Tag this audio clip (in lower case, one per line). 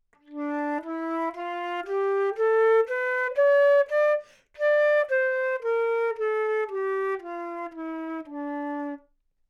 musical instrument
music
woodwind instrument